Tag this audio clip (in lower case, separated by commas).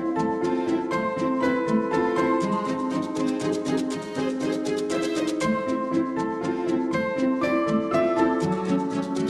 music